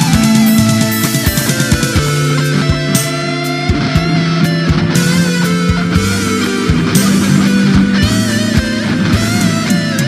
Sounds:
guitar, music, playing electric guitar, plucked string instrument, heavy metal, electric guitar, progressive rock, musical instrument

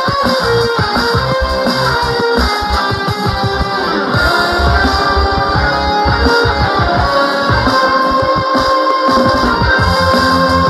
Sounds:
musical instrument, music, plucked string instrument, guitar, strum

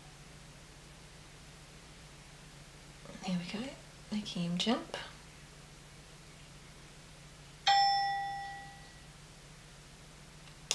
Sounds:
inside a small room, speech

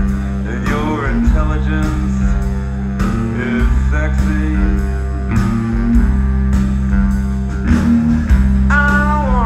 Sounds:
music

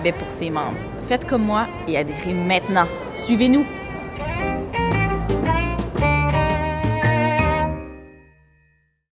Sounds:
music, speech

